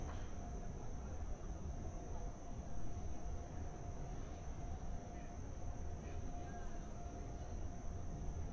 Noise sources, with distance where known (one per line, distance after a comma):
person or small group talking, far